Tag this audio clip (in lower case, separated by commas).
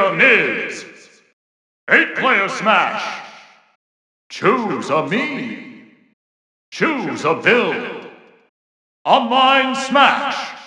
speech